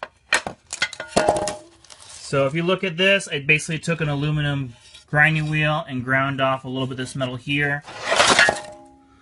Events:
[0.00, 0.15] generic impact sounds
[0.28, 0.50] generic impact sounds
[0.63, 1.70] generic impact sounds
[1.78, 2.26] scrape
[2.30, 4.64] man speaking
[4.61, 5.05] surface contact
[5.02, 7.79] man speaking
[5.26, 5.53] surface contact
[7.79, 8.67] scrape
[8.08, 8.50] generic impact sounds
[8.54, 8.89] reverberation
[8.93, 9.21] breathing

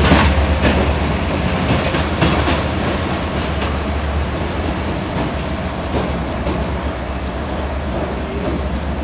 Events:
[0.00, 0.35] clickety-clack
[0.00, 9.03] train
[0.56, 0.95] clickety-clack
[1.65, 2.51] clickety-clack
[3.31, 3.74] clickety-clack
[5.11, 5.42] clickety-clack
[6.00, 6.13] clickety-clack
[6.42, 6.98] clickety-clack
[8.22, 8.60] clickety-clack

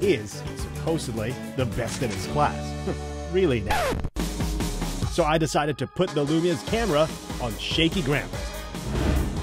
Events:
[0.00, 0.32] male speech
[0.00, 9.42] music
[0.83, 1.36] male speech
[1.57, 2.56] male speech
[1.74, 2.38] single-lens reflex camera
[2.83, 3.01] male speech
[3.31, 3.93] male speech
[3.70, 4.09] zipper (clothing)
[5.18, 7.08] male speech
[7.30, 8.24] male speech
[8.71, 9.42] sound effect

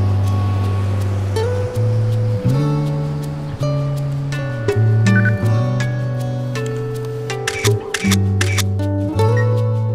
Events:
[0.00, 9.94] music
[5.08, 5.33] bleep
[7.44, 7.71] camera
[7.91, 8.18] camera
[8.35, 8.70] camera
[9.32, 9.49] bleep

